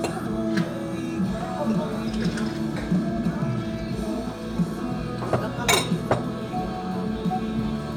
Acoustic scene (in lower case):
restaurant